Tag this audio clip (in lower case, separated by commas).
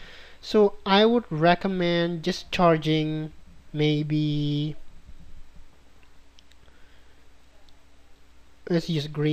speech, inside a small room, clicking